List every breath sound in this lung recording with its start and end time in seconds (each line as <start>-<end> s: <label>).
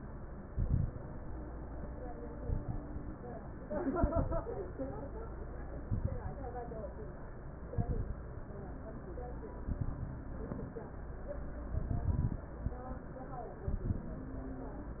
0.43-1.00 s: exhalation
0.43-1.00 s: crackles
2.39-2.96 s: exhalation
2.39-2.96 s: crackles
3.93-4.46 s: exhalation
3.93-4.46 s: crackles
5.85-6.38 s: exhalation
5.85-6.38 s: crackles
7.73-8.26 s: exhalation
7.73-8.26 s: crackles
9.67-10.20 s: exhalation
9.67-10.20 s: crackles
11.71-12.46 s: exhalation
11.71-12.46 s: crackles
13.66-14.14 s: exhalation
13.66-14.14 s: crackles